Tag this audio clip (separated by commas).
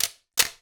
Mechanisms, Camera